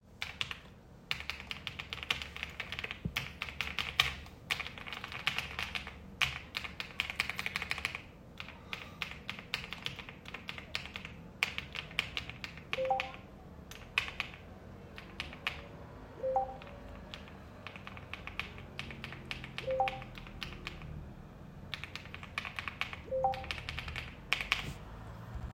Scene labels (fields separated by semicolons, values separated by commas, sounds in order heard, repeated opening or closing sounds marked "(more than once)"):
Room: living room; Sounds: keyboard typing, phone ringing